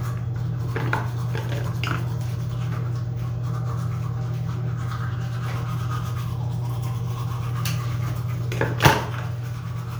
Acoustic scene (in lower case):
restroom